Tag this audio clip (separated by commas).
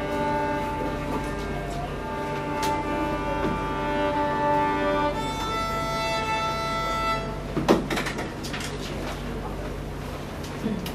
fiddle, Music, Musical instrument